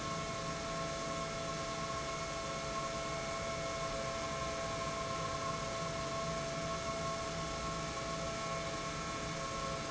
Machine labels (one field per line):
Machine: pump